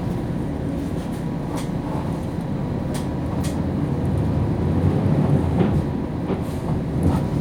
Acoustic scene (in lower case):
bus